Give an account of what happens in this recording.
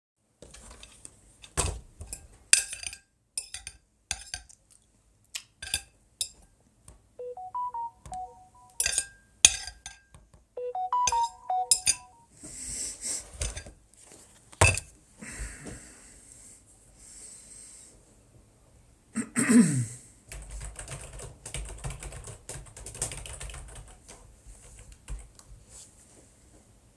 The person is sitting at the desk, eating lunch. They smack their lips a little while eating. A message arrives on their phone. They continue eating, then another message comes in. They finish eating and sniffle slightly. They move the plate aside, breathe out, and take a deep breath. They clear their throat, then start typing.